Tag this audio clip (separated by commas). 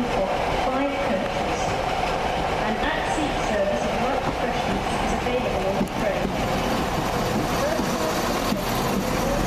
Clickety-clack, train wagon, Train, Rail transport